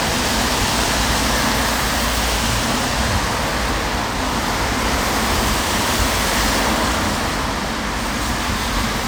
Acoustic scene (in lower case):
street